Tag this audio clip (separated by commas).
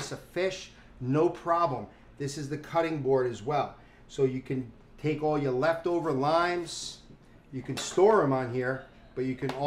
Speech